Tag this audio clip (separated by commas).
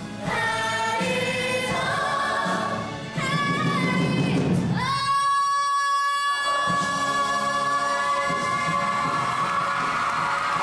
Singing, Choir, Gospel music